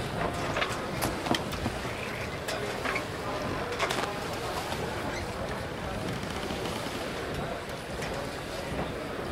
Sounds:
speech
water vehicle
vehicle

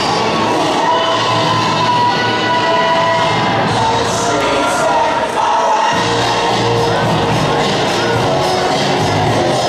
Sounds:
funk
rhythm and blues
dance music
music

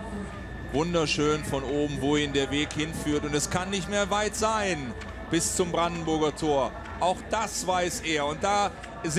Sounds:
speech

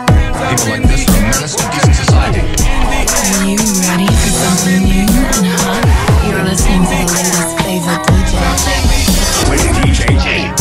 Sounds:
background music
speech
music

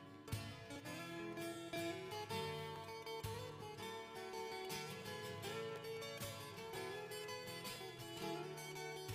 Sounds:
music

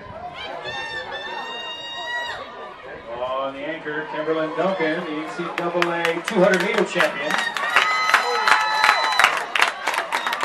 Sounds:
outside, urban or man-made
speech

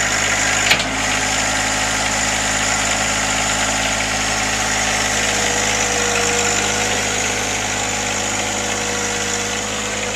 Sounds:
tractor digging

